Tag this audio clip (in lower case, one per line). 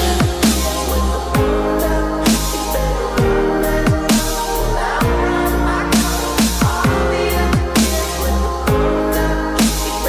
music